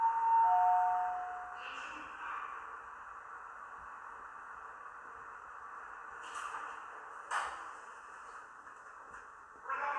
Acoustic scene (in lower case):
elevator